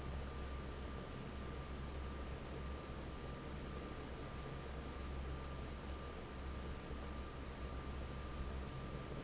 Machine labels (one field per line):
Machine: fan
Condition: normal